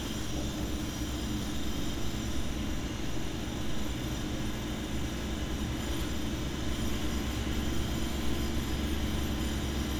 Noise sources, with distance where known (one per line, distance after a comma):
unidentified impact machinery, far